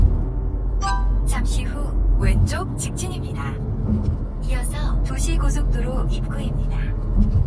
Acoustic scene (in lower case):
car